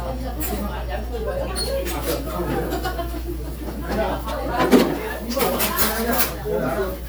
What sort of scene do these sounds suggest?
crowded indoor space